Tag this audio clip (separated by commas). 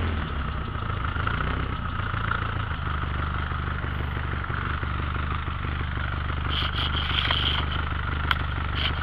Car, Vehicle